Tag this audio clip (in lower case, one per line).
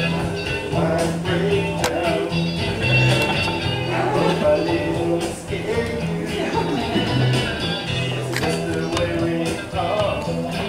singing
music of latin america